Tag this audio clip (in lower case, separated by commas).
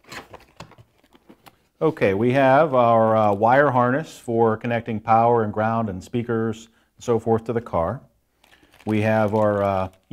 speech, inside a small room